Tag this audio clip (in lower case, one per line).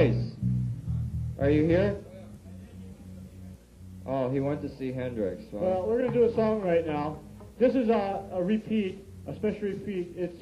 music
speech